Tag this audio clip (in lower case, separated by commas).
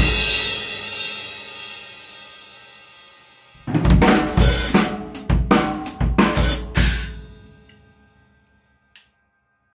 music